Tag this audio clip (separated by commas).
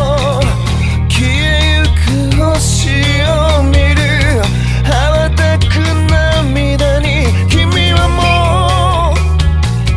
Jazz, Soundtrack music, Music